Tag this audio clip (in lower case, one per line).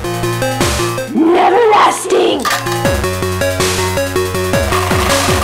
speech
music